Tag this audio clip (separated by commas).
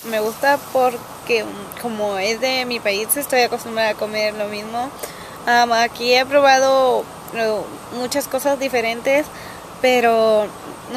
Speech